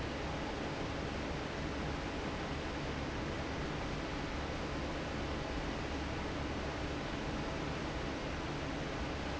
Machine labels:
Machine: fan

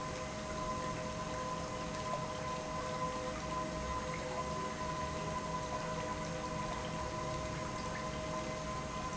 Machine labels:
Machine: pump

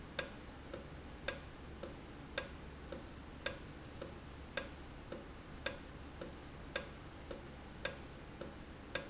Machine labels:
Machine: valve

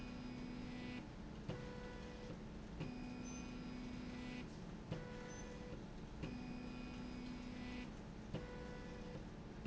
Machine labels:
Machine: slide rail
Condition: normal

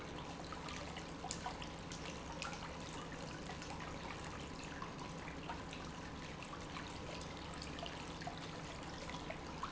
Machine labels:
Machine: pump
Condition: normal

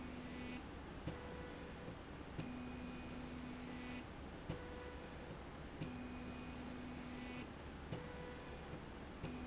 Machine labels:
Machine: slide rail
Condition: normal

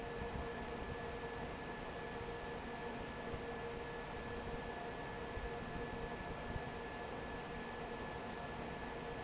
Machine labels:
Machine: fan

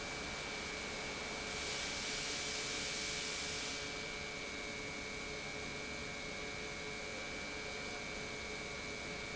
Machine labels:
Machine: pump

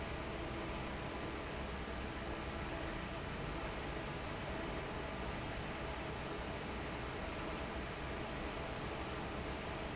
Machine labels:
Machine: fan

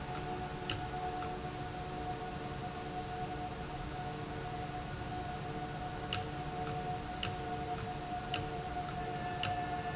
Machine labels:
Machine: valve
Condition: abnormal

